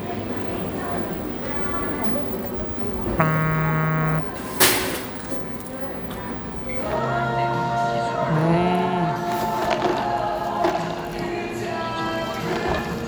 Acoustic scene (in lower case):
cafe